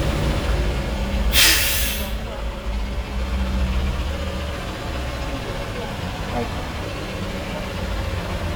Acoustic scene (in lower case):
street